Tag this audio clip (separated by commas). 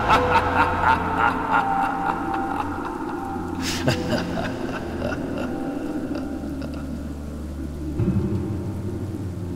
Music